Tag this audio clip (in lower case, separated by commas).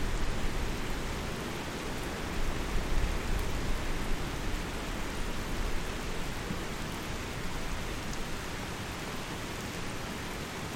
water, rain